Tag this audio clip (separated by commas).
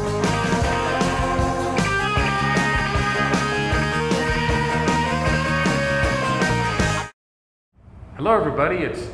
Speech, Music